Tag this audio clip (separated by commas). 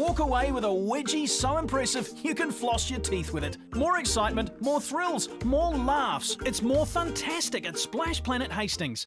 Speech